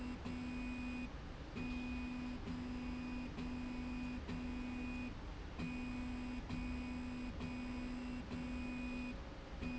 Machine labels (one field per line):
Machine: slide rail